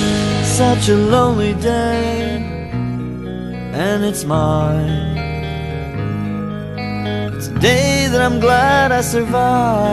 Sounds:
Music

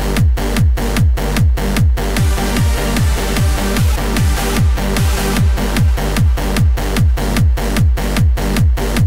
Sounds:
Dance music, Music

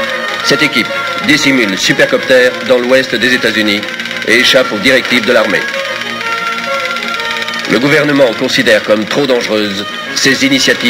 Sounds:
Speech, Music

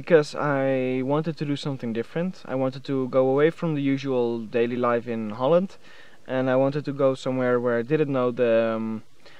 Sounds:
Music, Speech

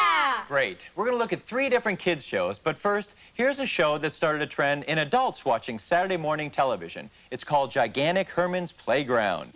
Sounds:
Television, Music, Speech

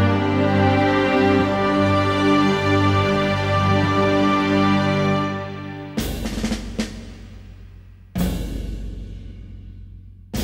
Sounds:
Music

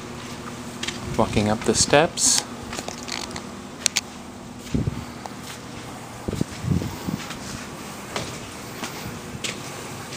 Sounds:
Speech

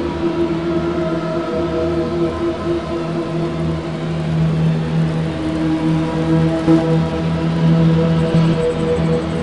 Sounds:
Music

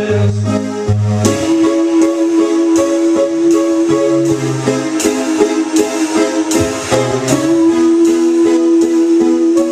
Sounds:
Music

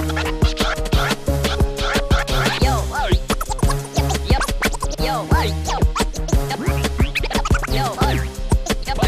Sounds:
Music

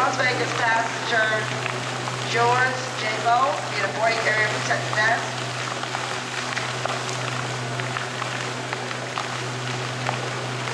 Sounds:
Speech

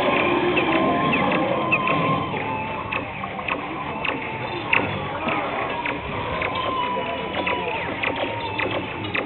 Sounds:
Buzz, Speech

